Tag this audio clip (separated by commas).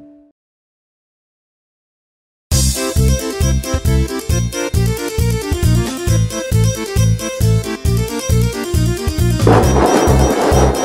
Music